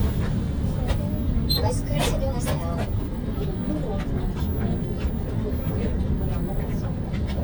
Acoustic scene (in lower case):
bus